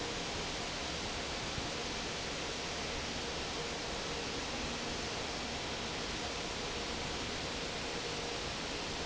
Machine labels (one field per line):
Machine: fan